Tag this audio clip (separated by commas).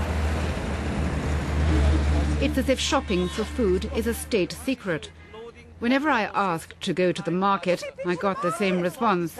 outside, urban or man-made, Speech